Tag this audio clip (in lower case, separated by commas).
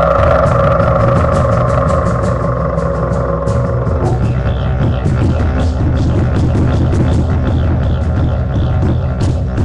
didgeridoo, music